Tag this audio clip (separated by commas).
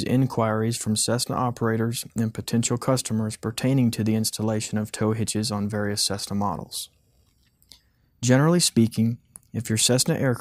Speech